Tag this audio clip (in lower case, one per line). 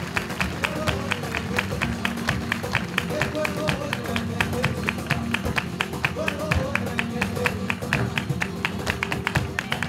flamenco
music of latin america
music